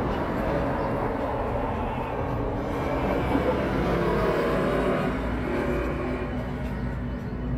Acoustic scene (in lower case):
street